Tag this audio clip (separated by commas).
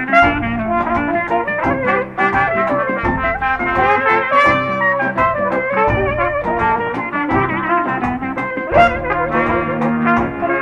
Brass instrument, Music, playing trombone, Trombone, Trumpet